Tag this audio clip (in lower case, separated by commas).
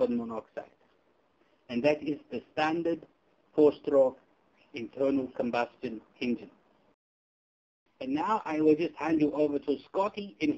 speech